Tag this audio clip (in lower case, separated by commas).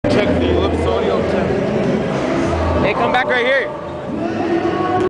music, speech